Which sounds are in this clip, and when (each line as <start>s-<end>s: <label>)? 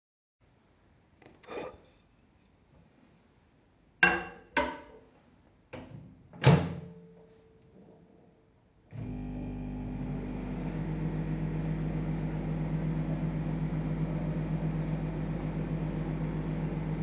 1.4s-1.7s: cutlery and dishes
4.0s-4.8s: cutlery and dishes
5.7s-7.0s: microwave
8.9s-17.0s: microwave